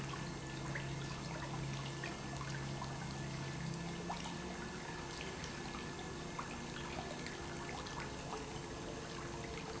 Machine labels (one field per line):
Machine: pump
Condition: normal